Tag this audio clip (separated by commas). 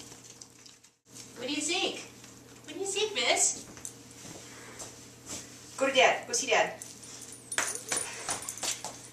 Speech, Yip